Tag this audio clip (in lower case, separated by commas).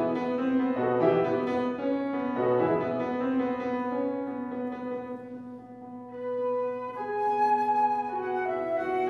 classical music, music